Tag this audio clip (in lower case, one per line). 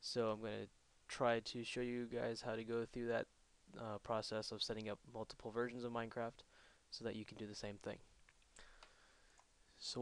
speech